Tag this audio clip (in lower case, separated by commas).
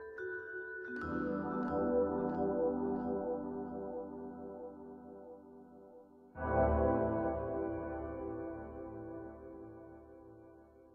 music, outside, urban or man-made